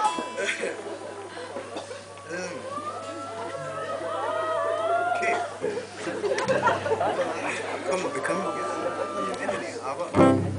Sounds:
Music, Speech

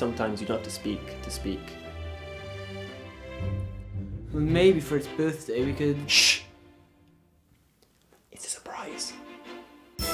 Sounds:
Speech, Music

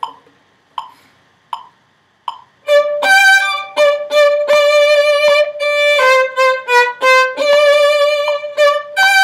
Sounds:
Music, Violin, Musical instrument

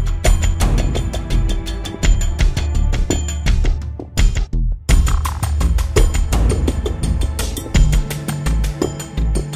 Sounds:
Music

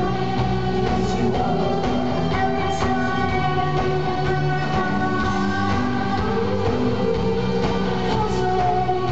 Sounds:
Music

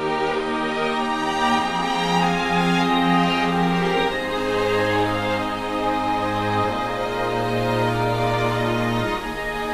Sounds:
Theme music, Music

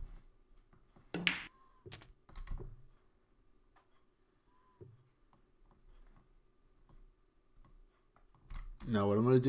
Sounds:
Speech

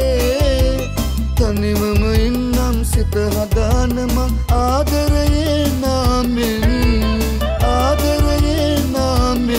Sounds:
Music

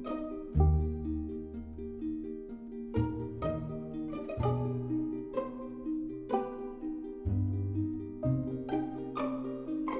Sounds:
Music

